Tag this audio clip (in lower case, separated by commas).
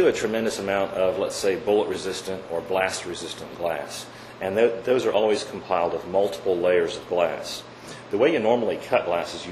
speech